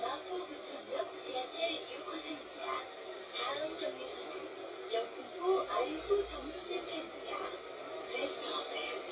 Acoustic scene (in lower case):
bus